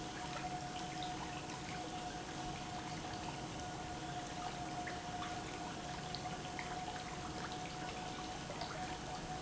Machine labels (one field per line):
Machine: pump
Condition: normal